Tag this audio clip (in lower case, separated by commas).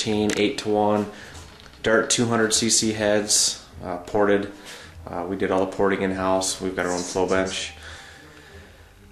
speech